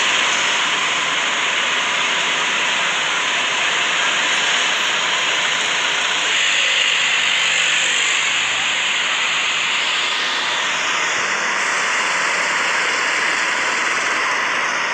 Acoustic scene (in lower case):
street